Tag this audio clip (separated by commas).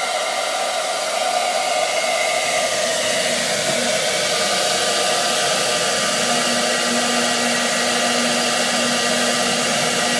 inside a small room